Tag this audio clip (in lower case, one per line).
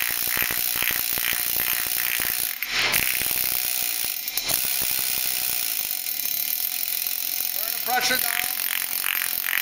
speech